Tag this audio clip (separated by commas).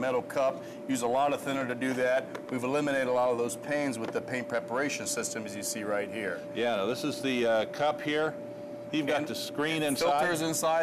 Speech